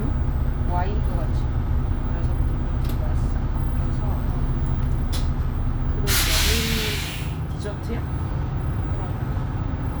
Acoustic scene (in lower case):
bus